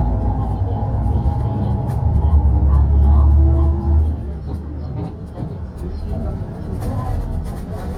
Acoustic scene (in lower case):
bus